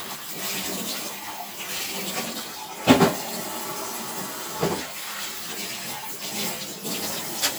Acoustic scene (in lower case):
kitchen